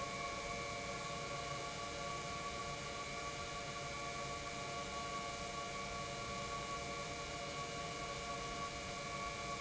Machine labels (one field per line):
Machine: pump